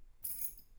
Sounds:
Domestic sounds, Keys jangling

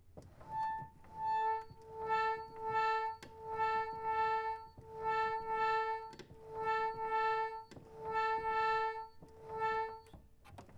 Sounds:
Organ, Musical instrument, Music, Keyboard (musical)

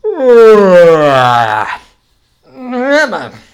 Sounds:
Human voice

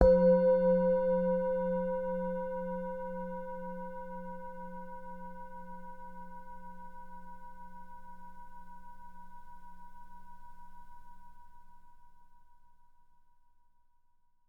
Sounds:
Music, Musical instrument

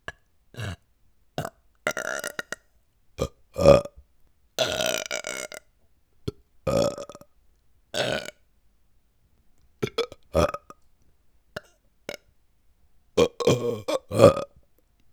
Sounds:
Burping

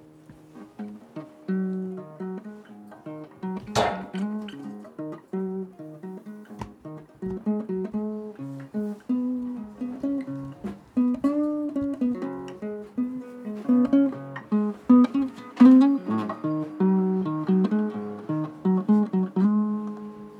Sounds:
Music, Guitar, Musical instrument, Plucked string instrument

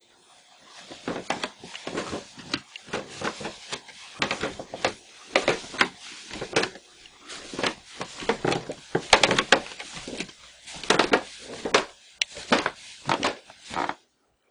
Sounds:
Wood

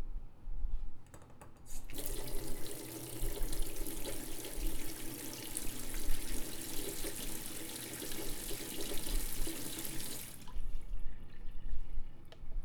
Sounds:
Sink (filling or washing), Water tap, Domestic sounds

